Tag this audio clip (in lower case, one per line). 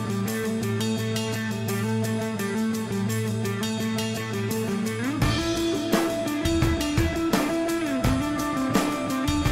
music